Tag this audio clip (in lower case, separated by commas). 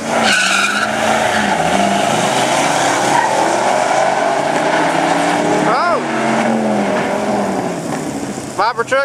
speech, vehicle, car